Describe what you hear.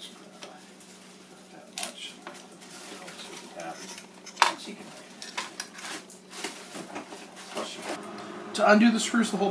Metal clanging and a man speaking